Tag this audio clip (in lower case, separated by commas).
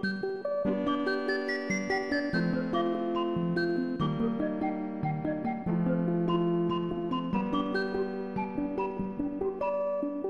music, theme music